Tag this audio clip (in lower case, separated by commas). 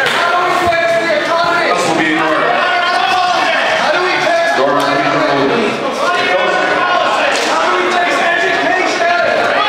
music, speech